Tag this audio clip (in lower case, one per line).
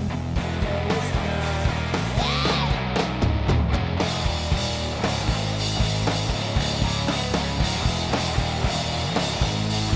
rock and roll
music